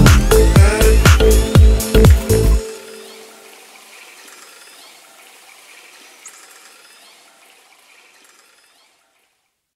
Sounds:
outside, rural or natural, music

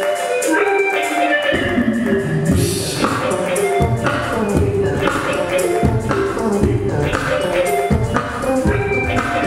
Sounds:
music

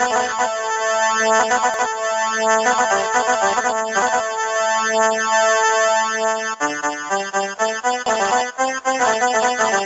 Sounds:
music

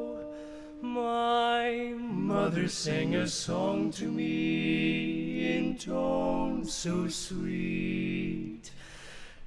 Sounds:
lullaby, music

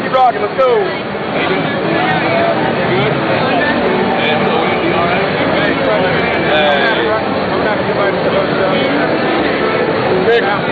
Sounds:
music, speech

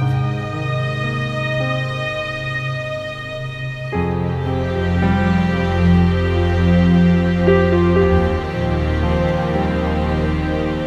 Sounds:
music

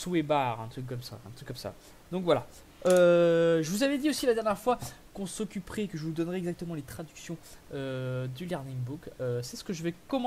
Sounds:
speech

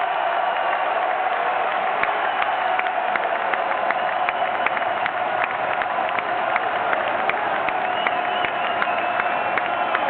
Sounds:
speech

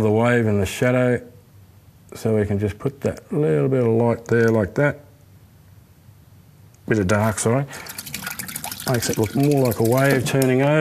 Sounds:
speech, inside a small room

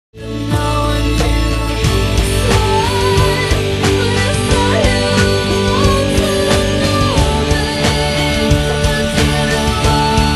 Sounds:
singing, music

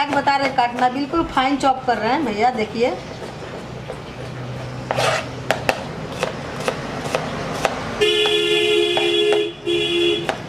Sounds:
chopping food

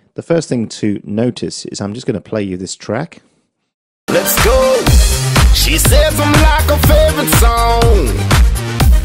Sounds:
speech, music

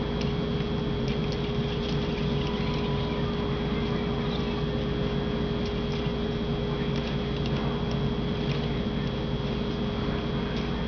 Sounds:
speech, inside a small room, kid speaking

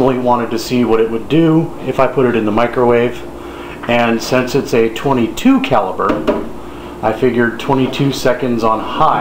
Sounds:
microwave oven, speech

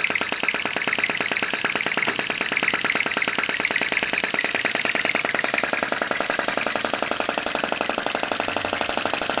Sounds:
idling, engine

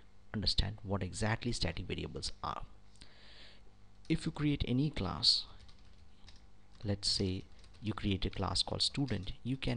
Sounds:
speech

